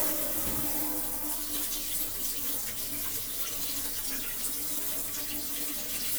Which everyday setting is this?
kitchen